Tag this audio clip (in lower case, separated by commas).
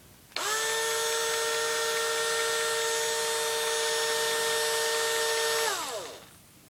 power tool, engine, tools, drill